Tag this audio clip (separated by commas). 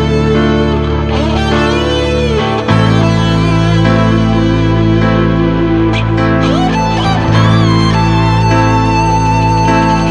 Music, Dance music, Exciting music